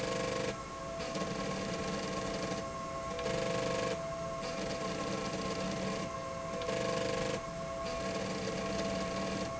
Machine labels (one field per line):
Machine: slide rail